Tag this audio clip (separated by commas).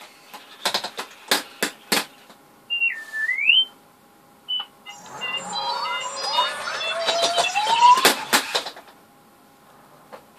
inside a small room